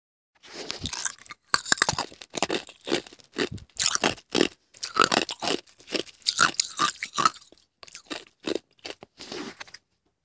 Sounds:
Chewing

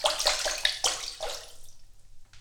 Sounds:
Sink (filling or washing), Liquid, Domestic sounds, Water, Splash

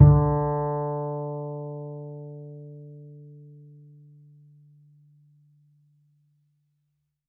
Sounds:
Bowed string instrument, Music, Musical instrument

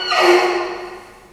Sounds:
Squeak

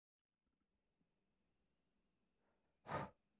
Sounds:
Breathing, Respiratory sounds

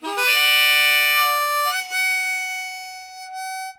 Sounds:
Musical instrument, Harmonica, Music

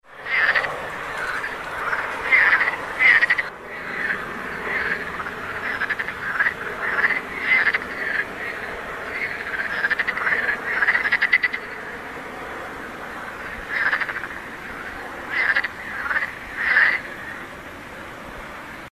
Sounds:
Wild animals, Frog, Animal

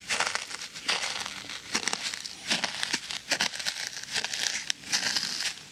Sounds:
footsteps

